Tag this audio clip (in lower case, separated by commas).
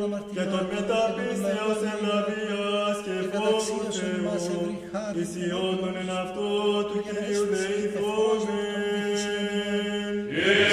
mantra